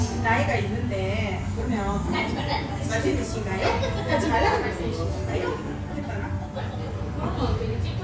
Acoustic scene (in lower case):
restaurant